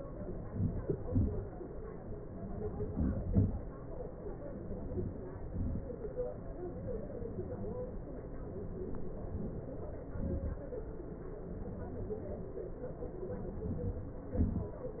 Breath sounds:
2.86-3.20 s: inhalation
3.32-3.62 s: exhalation
4.70-5.22 s: inhalation
5.39-5.82 s: exhalation
13.61-14.27 s: inhalation
14.40-14.80 s: exhalation

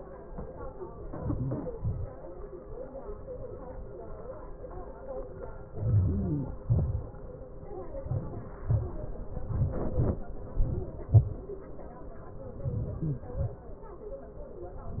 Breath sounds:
1.12-1.65 s: inhalation
1.83-2.20 s: exhalation
5.78-6.55 s: inhalation
6.71-7.12 s: exhalation
8.04-8.58 s: inhalation
8.70-9.10 s: exhalation
12.71-13.26 s: inhalation
13.40-13.77 s: exhalation

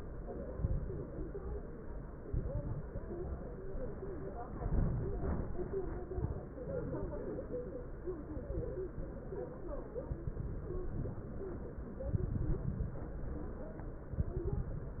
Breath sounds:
0.53-1.16 s: exhalation
0.53-1.16 s: crackles
2.24-2.87 s: exhalation
2.24-2.87 s: crackles
4.60-5.51 s: exhalation
4.60-5.51 s: crackles
10.28-11.19 s: exhalation
10.28-11.19 s: crackles
12.09-13.00 s: exhalation
12.09-13.00 s: crackles
14.16-15.00 s: exhalation
14.16-15.00 s: crackles

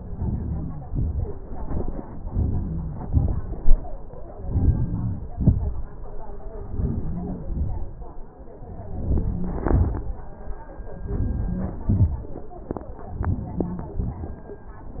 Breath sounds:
0.00-0.72 s: inhalation
0.89-1.36 s: exhalation
2.30-2.89 s: inhalation
3.13-3.62 s: exhalation
4.54-5.11 s: inhalation
5.39-5.88 s: exhalation
6.74-7.39 s: inhalation
7.51-7.99 s: exhalation
8.93-9.60 s: inhalation
9.73-10.16 s: exhalation
11.13-11.71 s: inhalation
11.94-12.26 s: exhalation
13.21-13.85 s: inhalation
13.99-14.29 s: exhalation

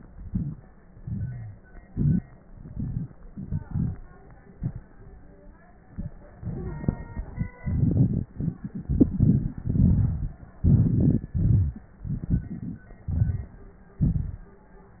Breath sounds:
8.82-9.56 s: inhalation
9.56-10.36 s: exhalation
10.64-11.33 s: inhalation
11.33-11.92 s: exhalation

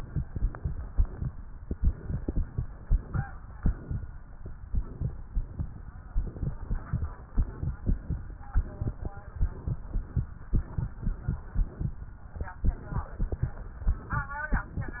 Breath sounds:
0.00-0.25 s: inhalation
0.26-1.35 s: exhalation
1.66-2.45 s: inhalation
3.58-4.47 s: exhalation
4.67-5.67 s: inhalation
6.05-7.05 s: exhalation
7.31-8.32 s: inhalation
8.49-9.36 s: exhalation
9.35-10.28 s: inhalation
10.47-11.96 s: exhalation
12.54-13.50 s: inhalation
13.50-14.47 s: exhalation
14.52-15.00 s: inhalation

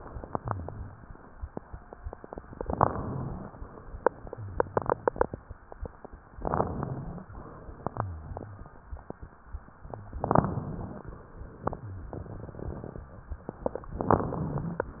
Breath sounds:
0.34-0.90 s: rhonchi
2.65-3.56 s: inhalation
4.40-5.36 s: exhalation
6.33-7.29 s: inhalation
7.93-8.69 s: exhalation
7.93-8.69 s: rhonchi
10.20-11.16 s: inhalation
13.99-14.92 s: inhalation

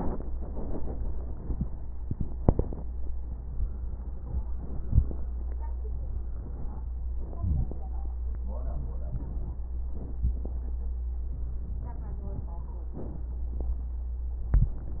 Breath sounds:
4.49-5.75 s: inhalation
5.75-7.25 s: exhalation
5.75-7.25 s: crackles
7.25-8.44 s: inhalation
7.26-8.44 s: crackles
8.47-9.74 s: exhalation
8.47-9.74 s: crackles
9.77-11.22 s: inhalation
9.77-11.22 s: crackles
11.24-12.91 s: exhalation
11.24-12.91 s: crackles
12.93-14.43 s: inhalation
12.94-14.47 s: crackles

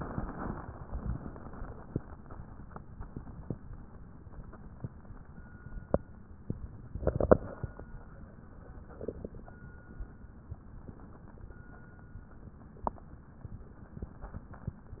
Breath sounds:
0.00-1.85 s: exhalation

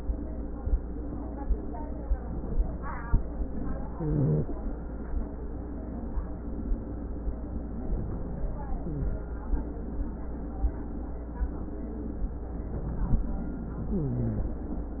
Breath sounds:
3.93-4.57 s: wheeze
8.73-9.17 s: wheeze
13.91-14.55 s: wheeze

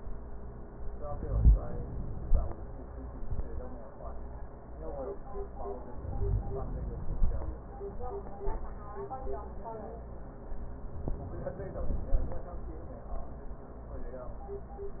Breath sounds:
1.07-2.40 s: inhalation
5.79-7.11 s: inhalation

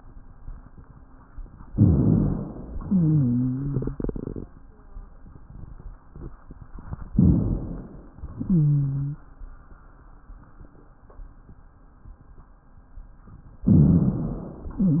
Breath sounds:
1.70-2.72 s: inhalation
2.76-3.94 s: exhalation
2.76-3.94 s: wheeze
7.12-8.14 s: inhalation
8.22-9.26 s: exhalation
8.22-9.26 s: wheeze
13.68-14.70 s: inhalation
14.68-15.00 s: exhalation
14.68-15.00 s: wheeze
14.68-15.00 s: wheeze

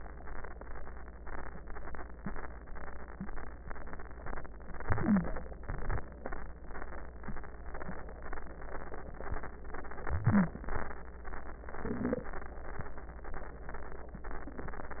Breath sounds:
4.71-5.62 s: inhalation
4.71-5.62 s: wheeze
5.66-6.57 s: exhalation
10.06-10.98 s: wheeze
10.08-11.00 s: inhalation
11.71-12.62 s: exhalation

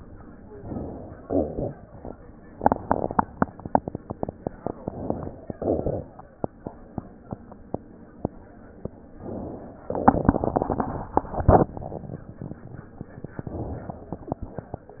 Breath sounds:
0.50-1.19 s: inhalation
1.19-2.16 s: exhalation
1.19-2.16 s: crackles
4.61-5.52 s: inhalation
4.61-5.52 s: crackles
5.54-6.31 s: crackles
9.10-9.87 s: inhalation
9.85-12.25 s: exhalation
9.85-12.25 s: crackles
13.31-13.87 s: crackles
13.33-13.91 s: inhalation
13.88-14.46 s: exhalation
13.88-14.46 s: crackles

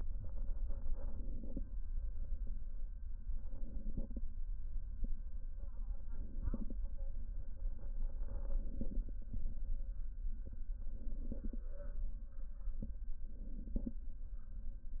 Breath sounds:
0.63-1.61 s: inhalation
3.26-4.25 s: inhalation
5.94-6.76 s: inhalation
8.31-9.13 s: inhalation
10.87-11.69 s: inhalation
13.26-14.08 s: inhalation

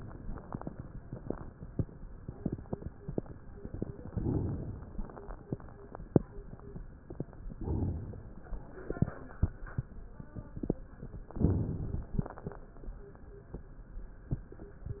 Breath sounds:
4.08-4.99 s: inhalation
7.61-8.52 s: inhalation
11.44-12.20 s: inhalation

